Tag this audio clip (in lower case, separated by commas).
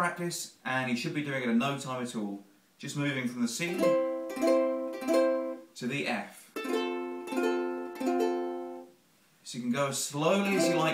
playing ukulele